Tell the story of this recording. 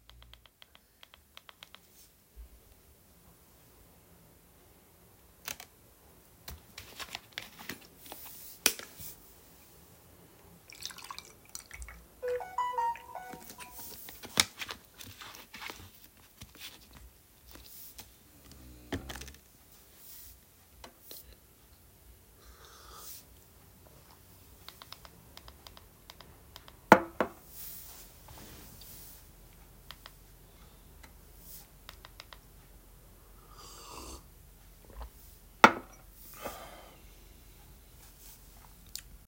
I was clicking the remote control button, then I opened a bottle of juice, pour in a glass, in the meanwhile I recieved a notification on my phone, I closed the bottle and return it on the table, I sipped from the glass and kept clicking the remote control, i put the glass back on the glass table and kept clicking the button. finally i took a final sip and put the glass again.